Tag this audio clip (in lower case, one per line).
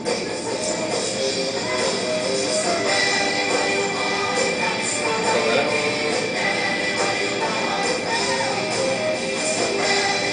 music